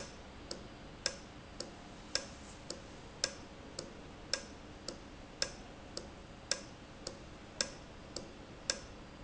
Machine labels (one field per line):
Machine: valve